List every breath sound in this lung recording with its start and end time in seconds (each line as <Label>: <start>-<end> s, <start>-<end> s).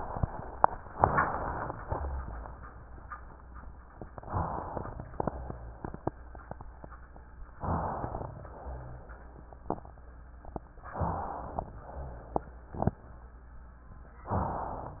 Inhalation: 0.91-1.77 s, 4.12-4.97 s, 7.57-8.43 s, 10.87-11.73 s, 14.36-15.00 s